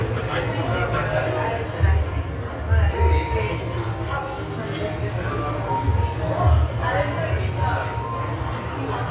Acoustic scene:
cafe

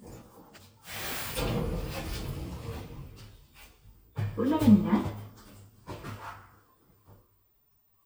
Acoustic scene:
elevator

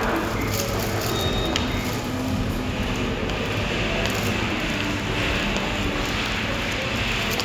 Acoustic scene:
subway station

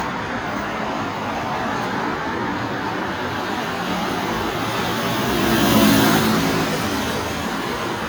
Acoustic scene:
street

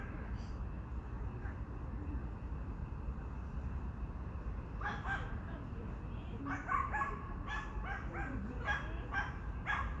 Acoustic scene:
park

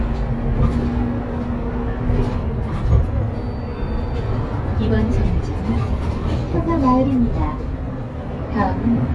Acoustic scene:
bus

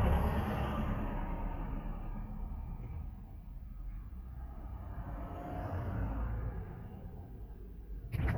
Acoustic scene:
residential area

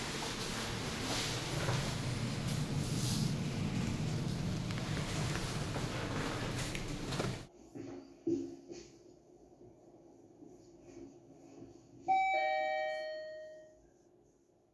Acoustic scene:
elevator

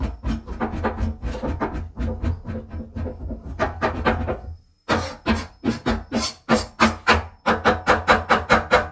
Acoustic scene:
kitchen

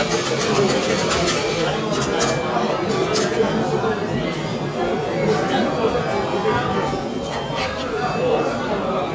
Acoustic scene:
cafe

